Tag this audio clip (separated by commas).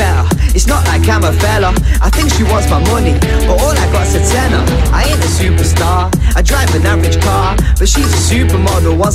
Music